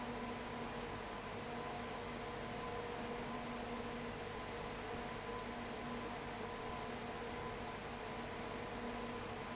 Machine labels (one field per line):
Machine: fan